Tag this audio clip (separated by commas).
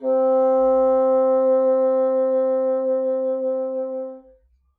Musical instrument, Wind instrument, Music